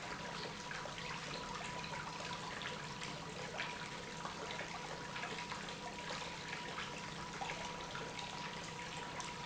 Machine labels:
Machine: pump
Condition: normal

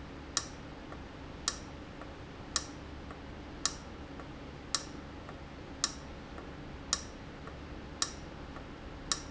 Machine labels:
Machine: valve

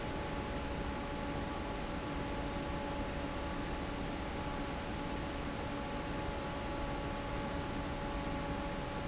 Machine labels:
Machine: fan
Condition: normal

